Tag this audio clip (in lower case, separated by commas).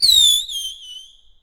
fireworks, explosion